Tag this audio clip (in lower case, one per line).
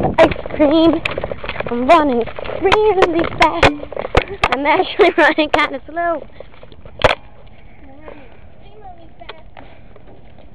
speech